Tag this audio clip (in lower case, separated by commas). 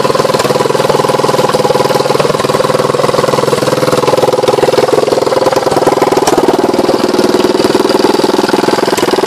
engine, idling, vehicle, medium engine (mid frequency)